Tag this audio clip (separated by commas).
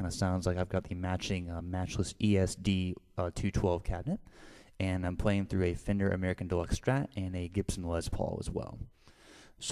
Speech